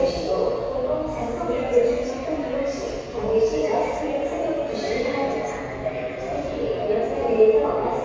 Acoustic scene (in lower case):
subway station